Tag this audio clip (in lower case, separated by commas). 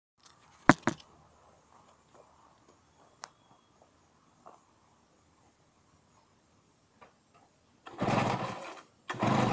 engine starting